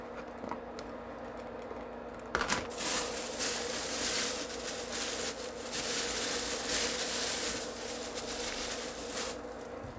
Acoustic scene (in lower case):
kitchen